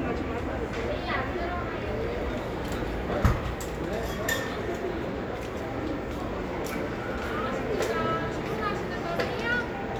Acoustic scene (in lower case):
cafe